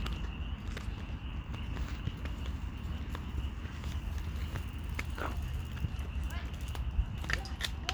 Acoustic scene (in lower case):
park